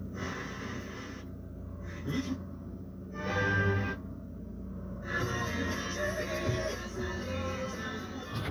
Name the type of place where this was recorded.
car